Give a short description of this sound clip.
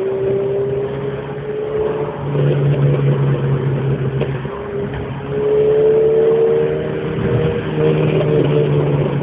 A vehicle accelerating